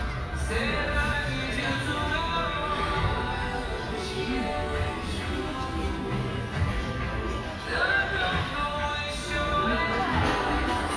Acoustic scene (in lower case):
restaurant